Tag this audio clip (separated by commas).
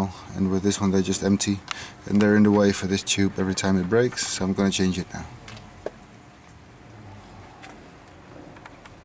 Speech